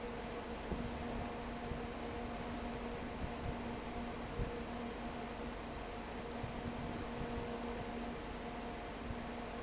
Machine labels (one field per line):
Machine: fan